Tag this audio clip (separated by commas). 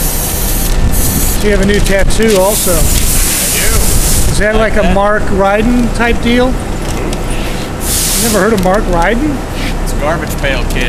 Speech